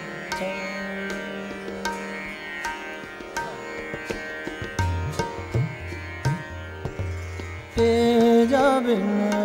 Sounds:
tabla, percussion, drum

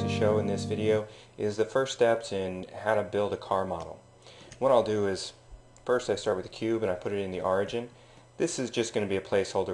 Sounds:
music, speech

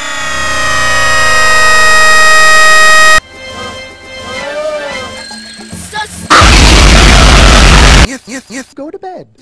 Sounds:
speech, vehicle, music

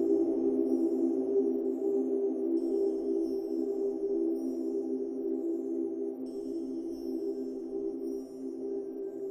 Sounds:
music

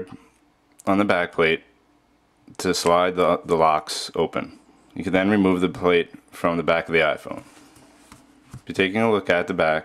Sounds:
speech

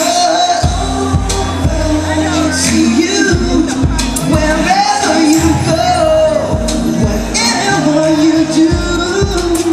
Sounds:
singing, music, crowd

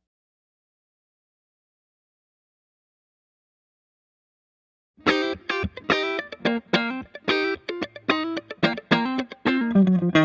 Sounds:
music

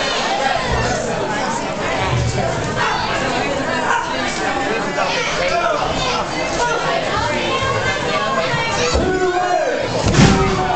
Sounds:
speech

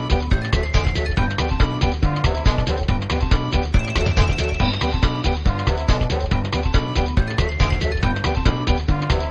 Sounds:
music

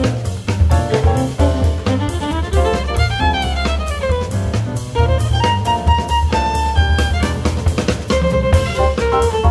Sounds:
musical instrument, music, fiddle

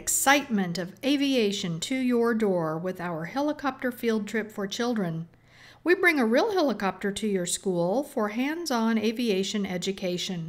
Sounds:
speech

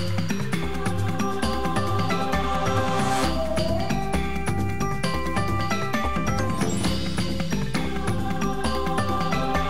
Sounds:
music

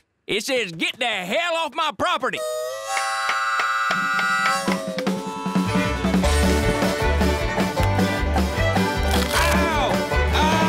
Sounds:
outside, rural or natural, music, speech

